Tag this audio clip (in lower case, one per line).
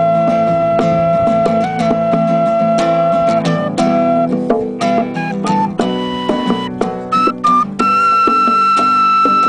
flute
music